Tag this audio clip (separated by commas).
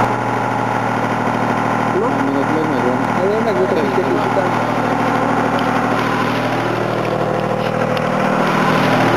Vehicle, Speech, Engine